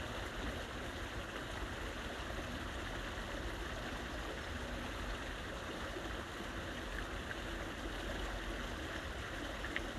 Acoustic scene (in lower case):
park